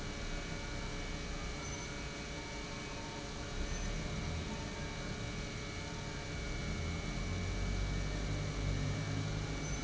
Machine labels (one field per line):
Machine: pump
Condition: normal